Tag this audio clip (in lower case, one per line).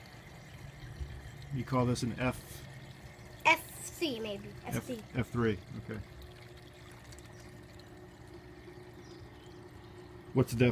stream
speech
gurgling